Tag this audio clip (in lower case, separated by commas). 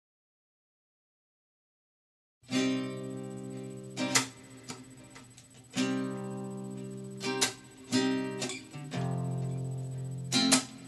musical instrument, music, inside a small room, guitar